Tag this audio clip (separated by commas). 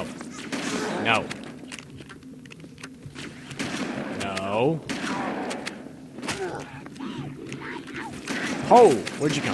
Fusillade